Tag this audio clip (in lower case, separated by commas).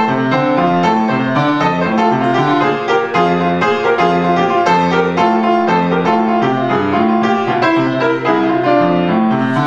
music